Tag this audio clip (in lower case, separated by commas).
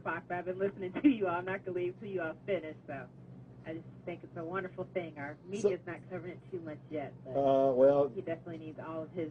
speech